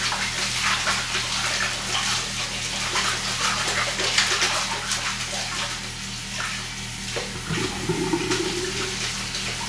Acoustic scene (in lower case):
restroom